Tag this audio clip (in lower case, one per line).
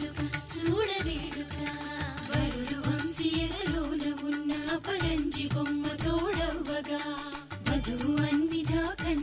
wedding music
music